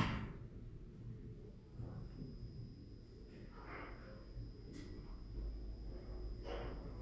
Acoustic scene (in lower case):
elevator